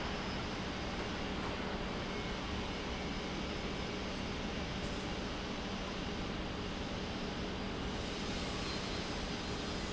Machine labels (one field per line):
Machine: pump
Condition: normal